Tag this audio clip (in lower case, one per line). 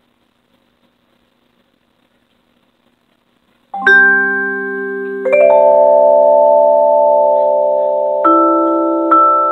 playing vibraphone